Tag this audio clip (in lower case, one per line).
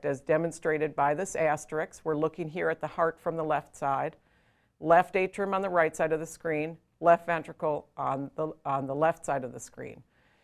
speech